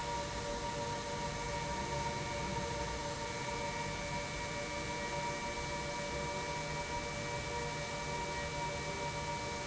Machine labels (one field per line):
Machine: pump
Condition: normal